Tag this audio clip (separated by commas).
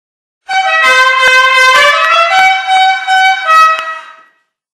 Vehicle horn